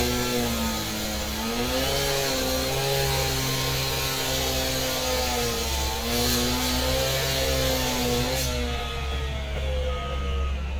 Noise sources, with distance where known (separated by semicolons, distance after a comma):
chainsaw, near